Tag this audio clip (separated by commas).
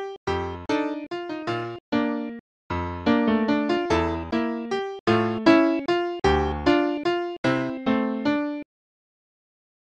Music